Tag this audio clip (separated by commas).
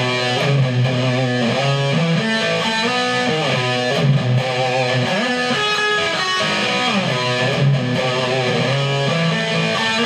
Plucked string instrument, Musical instrument, Music, Guitar, Electric guitar